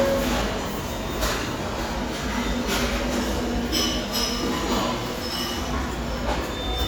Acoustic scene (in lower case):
restaurant